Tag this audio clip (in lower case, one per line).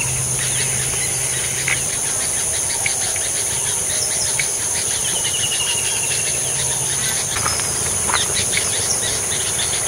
bird
outside, rural or natural